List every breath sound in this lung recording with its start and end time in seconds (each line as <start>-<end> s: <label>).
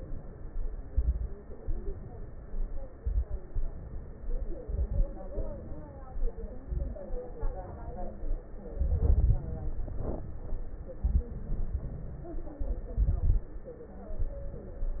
0.87-1.34 s: inhalation
0.87-1.34 s: crackles
1.59-2.82 s: exhalation
2.98-3.44 s: inhalation
2.98-3.44 s: crackles
3.53-4.58 s: exhalation
4.62-5.08 s: inhalation
4.62-5.08 s: crackles
5.38-6.31 s: exhalation
6.61-7.08 s: inhalation
6.61-7.08 s: crackles
7.37-8.44 s: exhalation
8.74-9.45 s: inhalation
8.74-9.45 s: crackles
9.63-10.71 s: exhalation
10.96-11.33 s: crackles
10.98-11.33 s: inhalation
11.38-12.51 s: exhalation
12.60-13.53 s: inhalation
12.60-13.53 s: crackles
14.18-15.00 s: exhalation